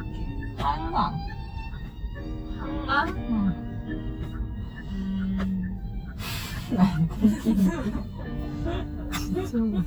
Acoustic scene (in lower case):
car